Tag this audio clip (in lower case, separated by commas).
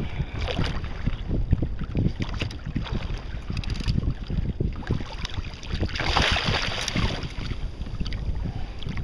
water vehicle, rowboat, kayak rowing